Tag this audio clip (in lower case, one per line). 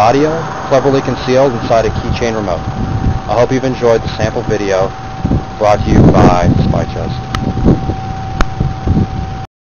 speech